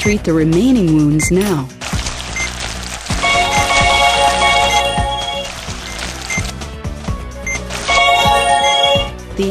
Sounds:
Music, Speech

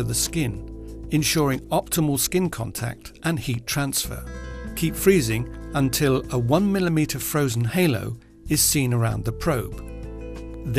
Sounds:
Speech, Music

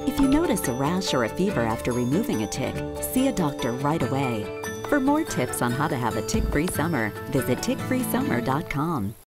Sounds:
Music, Speech

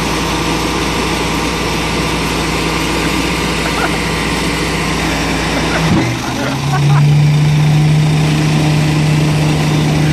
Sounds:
Vehicle

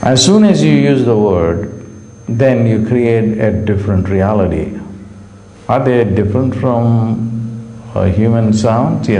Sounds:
Speech

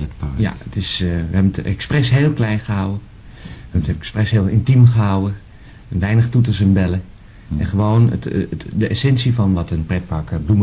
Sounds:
Speech

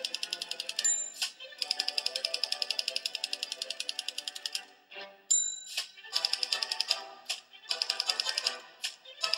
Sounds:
typing on typewriter

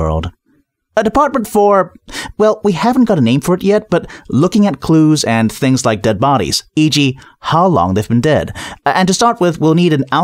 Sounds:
Speech, Narration, Speech synthesizer

